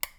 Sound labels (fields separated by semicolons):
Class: switch; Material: plastic